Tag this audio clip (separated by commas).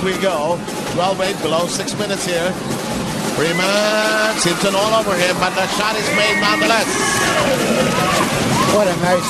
Speech, Music